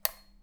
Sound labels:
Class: switch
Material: plastic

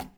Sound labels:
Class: object falling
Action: being thrown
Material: plastic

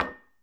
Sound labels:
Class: object falling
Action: being thrown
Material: glass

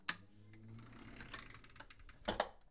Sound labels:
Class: window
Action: closing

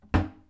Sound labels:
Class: cupboard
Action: closing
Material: wooden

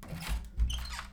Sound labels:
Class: door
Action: opening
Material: wooden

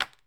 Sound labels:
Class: object falling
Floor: carpet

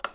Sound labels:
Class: switch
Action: being turned on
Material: plastic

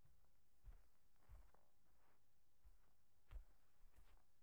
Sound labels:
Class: footsteps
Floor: carpet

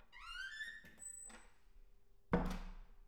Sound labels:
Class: door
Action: closing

